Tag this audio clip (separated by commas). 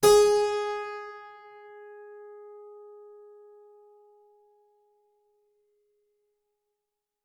Music, Keyboard (musical), Musical instrument